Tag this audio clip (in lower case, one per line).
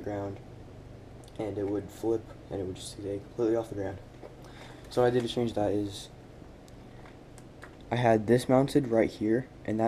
speech